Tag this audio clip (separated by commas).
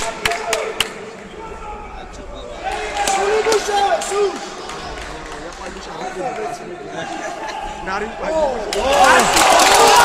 Speech